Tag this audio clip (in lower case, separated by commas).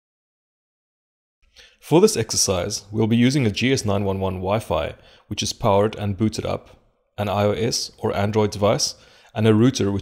speech